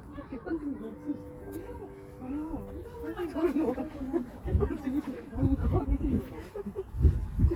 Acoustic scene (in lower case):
park